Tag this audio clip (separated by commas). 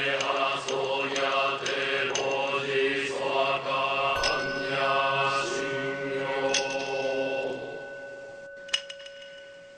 Mantra